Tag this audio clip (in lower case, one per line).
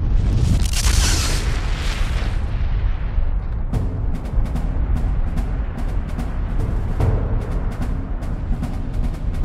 explosion
music